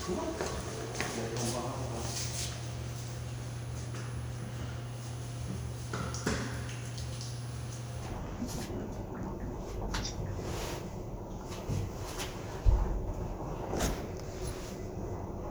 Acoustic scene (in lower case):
elevator